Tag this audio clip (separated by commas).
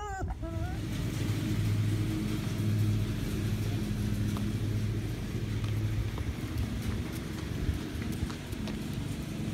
Domestic animals, Dog